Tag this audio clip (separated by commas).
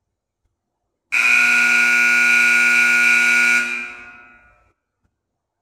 Alarm